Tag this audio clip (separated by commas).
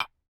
Tap, Glass